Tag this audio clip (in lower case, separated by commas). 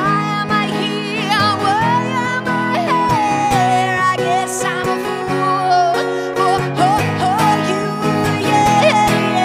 pop music, music, singing